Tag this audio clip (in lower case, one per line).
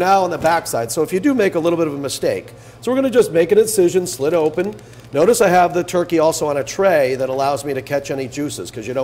speech